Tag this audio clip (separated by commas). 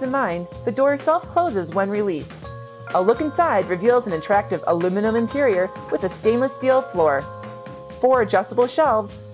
Speech, Music